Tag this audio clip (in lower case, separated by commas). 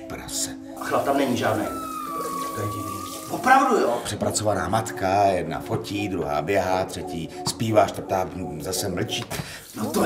speech, music